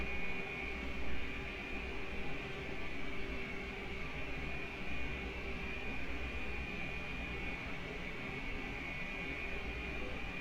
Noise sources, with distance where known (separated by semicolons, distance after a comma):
music from an unclear source, far